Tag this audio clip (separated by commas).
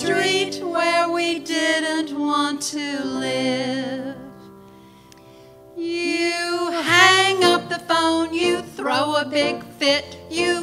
Music, Singing, Christian music, Christmas music